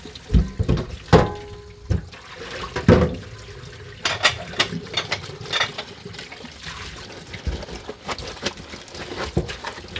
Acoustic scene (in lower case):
kitchen